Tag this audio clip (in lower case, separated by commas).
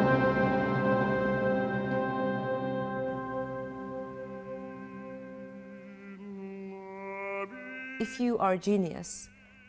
music, speech